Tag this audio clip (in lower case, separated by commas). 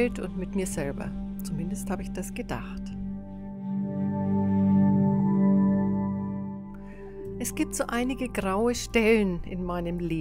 music, speech